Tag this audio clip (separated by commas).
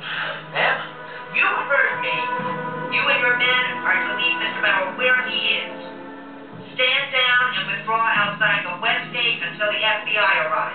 Speech, Music